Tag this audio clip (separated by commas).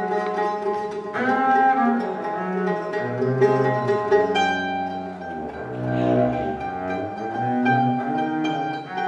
Music, Double bass, Musical instrument, String section